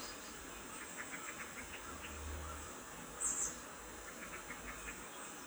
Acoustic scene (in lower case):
park